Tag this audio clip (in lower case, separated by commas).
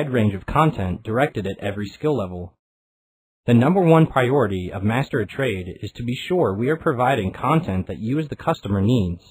speech, speech synthesizer